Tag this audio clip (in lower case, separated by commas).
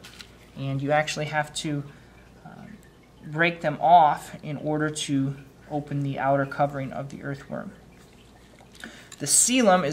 speech